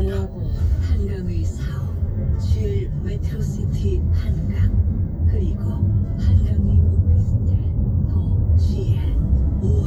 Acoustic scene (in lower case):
car